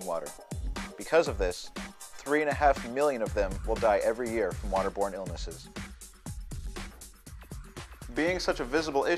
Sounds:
music, speech

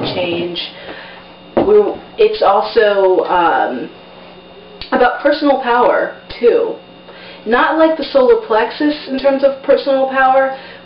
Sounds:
speech

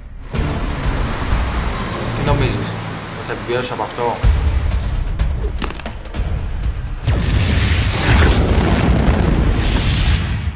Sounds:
speech, music

